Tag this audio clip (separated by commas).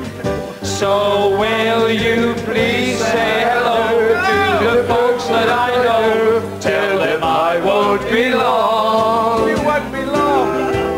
Singing, Music